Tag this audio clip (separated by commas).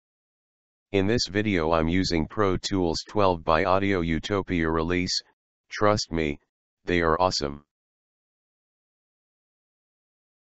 Speech